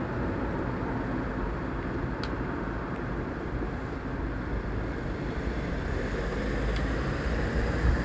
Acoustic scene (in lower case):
street